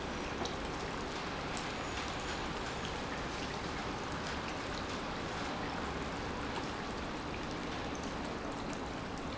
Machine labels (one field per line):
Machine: pump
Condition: normal